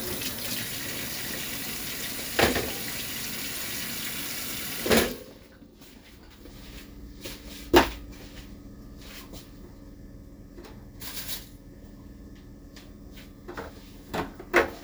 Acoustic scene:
kitchen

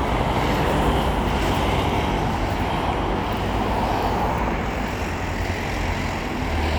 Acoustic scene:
street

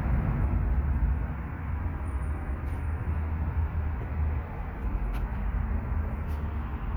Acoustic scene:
residential area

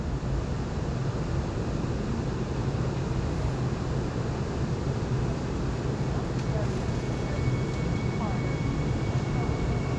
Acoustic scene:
subway train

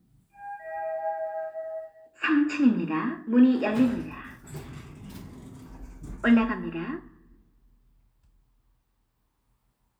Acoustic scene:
elevator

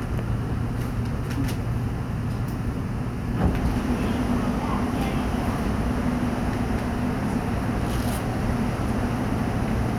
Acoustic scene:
subway train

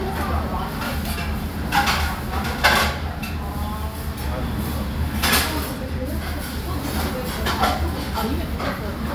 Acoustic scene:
restaurant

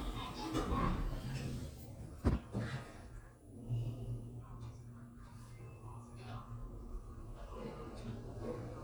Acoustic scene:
elevator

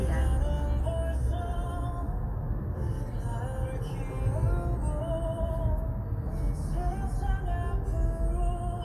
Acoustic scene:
car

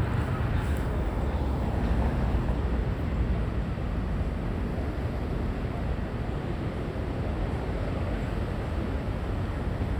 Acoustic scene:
residential area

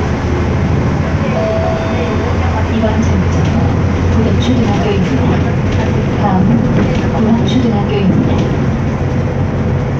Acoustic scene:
bus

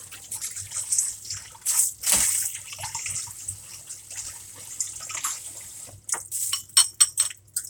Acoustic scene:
kitchen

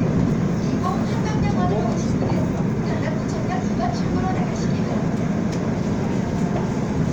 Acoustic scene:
subway train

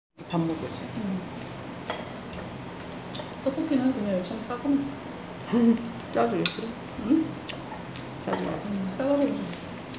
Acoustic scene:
restaurant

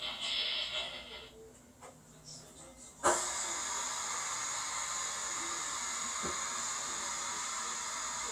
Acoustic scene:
kitchen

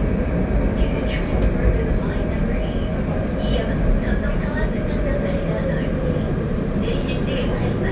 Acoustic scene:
subway train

